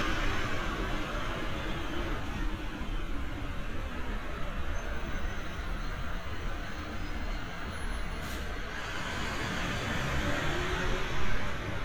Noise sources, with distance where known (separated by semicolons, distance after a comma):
large-sounding engine, near